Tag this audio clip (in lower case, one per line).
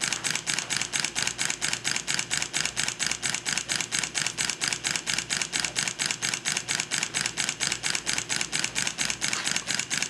engine